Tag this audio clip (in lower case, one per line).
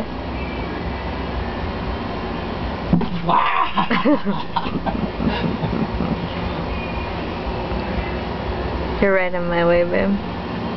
speech